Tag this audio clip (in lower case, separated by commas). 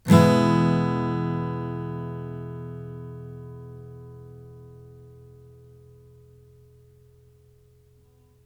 guitar, plucked string instrument, music, strum, musical instrument, acoustic guitar